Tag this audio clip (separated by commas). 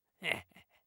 Laughter, Human voice